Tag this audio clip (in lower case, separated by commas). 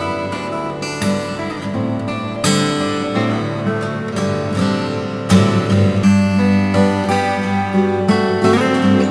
music, strum, plucked string instrument, guitar, musical instrument